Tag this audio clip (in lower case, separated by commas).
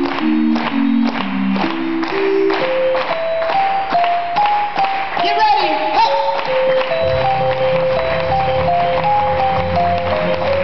speech, music, ping